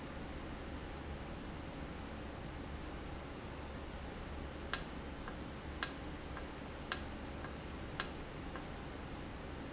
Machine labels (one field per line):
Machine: valve